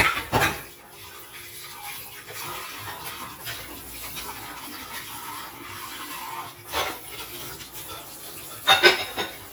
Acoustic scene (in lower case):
kitchen